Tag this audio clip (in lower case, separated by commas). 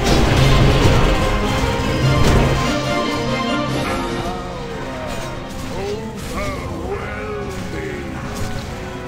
video game music